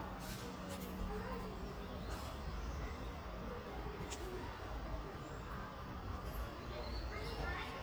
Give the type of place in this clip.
residential area